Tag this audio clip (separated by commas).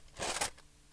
Cutlery, home sounds